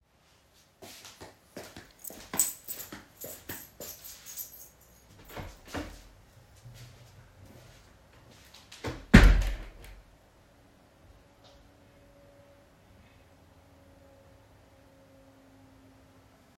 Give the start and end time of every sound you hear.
[0.33, 4.58] footsteps
[2.49, 5.98] keys
[5.26, 6.12] door
[8.76, 9.93] door

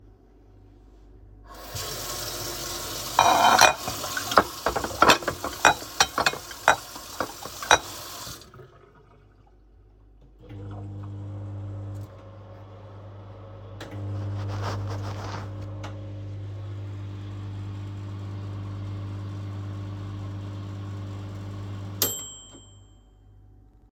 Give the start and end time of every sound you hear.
[1.47, 8.45] running water
[3.11, 7.91] cutlery and dishes
[10.34, 22.88] microwave

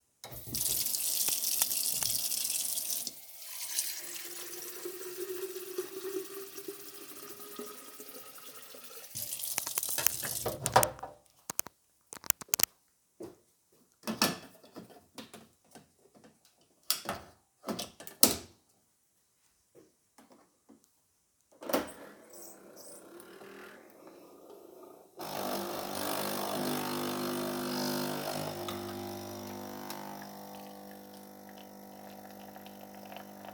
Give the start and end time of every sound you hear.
[0.24, 10.62] running water
[13.06, 13.56] footsteps
[21.62, 33.54] coffee machine

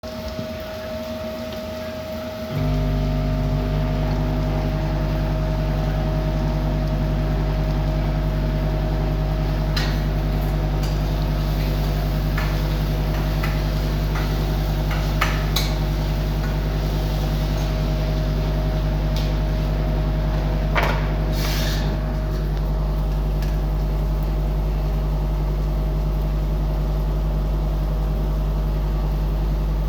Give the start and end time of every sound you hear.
[2.48, 29.89] microwave
[9.68, 17.06] cutlery and dishes
[20.67, 22.28] cutlery and dishes

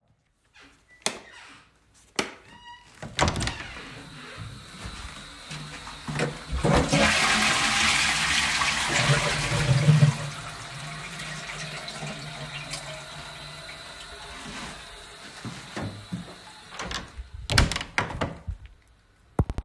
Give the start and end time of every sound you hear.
[1.00, 1.28] light switch
[2.09, 2.44] light switch
[2.46, 4.11] door
[6.55, 15.14] toilet flushing
[16.75, 18.76] door

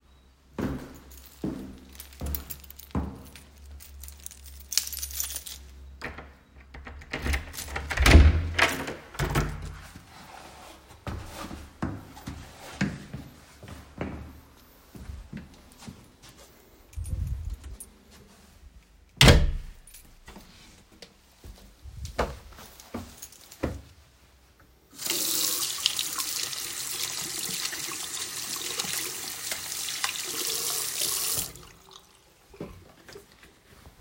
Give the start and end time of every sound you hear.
[0.05, 4.38] footsteps
[0.69, 8.34] keys
[6.00, 10.25] door
[10.96, 16.40] footsteps
[16.96, 18.19] keys
[19.02, 20.84] door
[20.99, 24.98] footsteps
[23.14, 23.54] keys
[24.81, 32.12] running water
[32.35, 33.54] footsteps

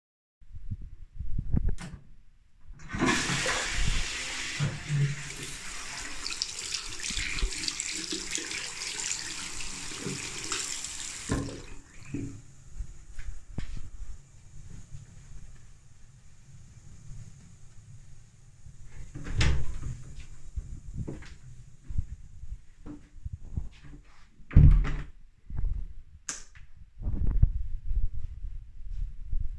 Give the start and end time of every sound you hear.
[2.50, 11.85] toilet flushing
[5.17, 11.25] running water
[18.55, 25.36] door
[20.56, 21.37] footsteps
[21.84, 24.00] footsteps
[25.91, 27.03] light switch

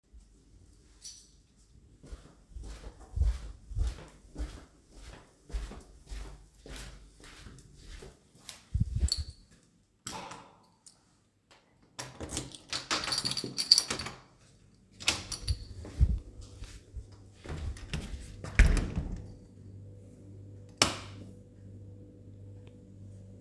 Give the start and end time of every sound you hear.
[1.02, 1.70] keys
[2.05, 9.66] footsteps
[8.95, 9.47] keys
[10.02, 10.97] keys
[11.90, 15.68] door
[12.74, 14.21] keys
[14.97, 16.32] keys
[15.78, 18.26] footsteps
[18.40, 19.45] door
[20.73, 21.33] light switch

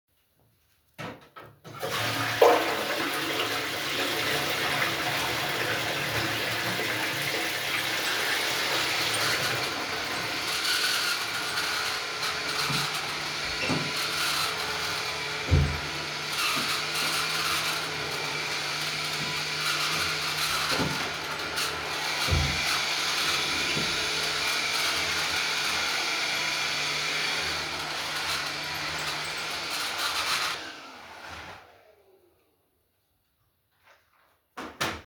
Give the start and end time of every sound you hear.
[0.99, 10.37] toilet flushing
[7.65, 32.37] vacuum cleaner
[13.54, 13.98] door
[15.43, 15.96] door
[22.13, 22.83] door
[34.50, 35.06] door

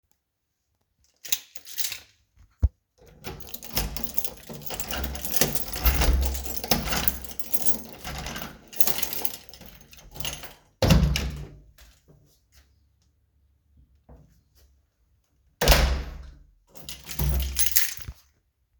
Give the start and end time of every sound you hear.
[1.24, 10.51] keys
[3.21, 11.65] door
[15.53, 16.43] door
[16.72, 18.20] keys

